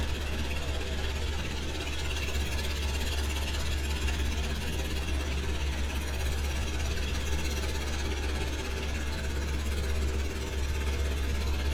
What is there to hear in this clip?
jackhammer